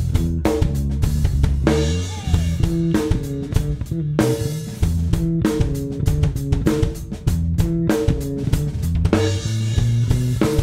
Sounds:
blues
music

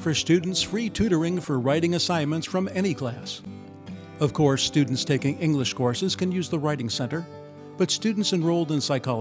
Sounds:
speech
music

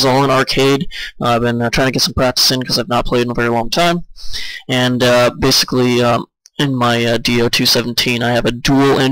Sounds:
speech

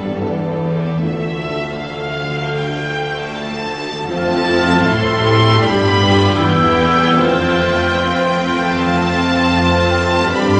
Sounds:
theme music
music
soundtrack music

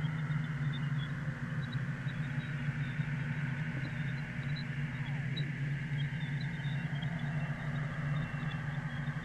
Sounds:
sound effect

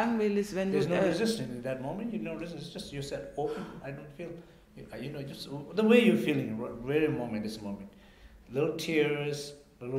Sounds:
speech

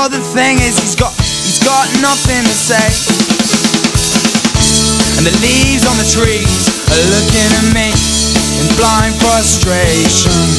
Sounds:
music

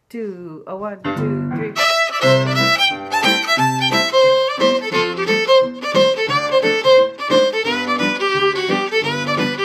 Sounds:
music
violin
speech
musical instrument

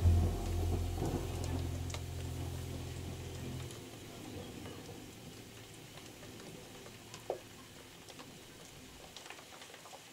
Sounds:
outside, rural or natural
rain

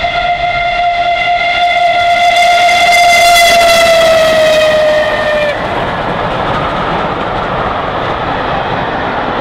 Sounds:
train whistling

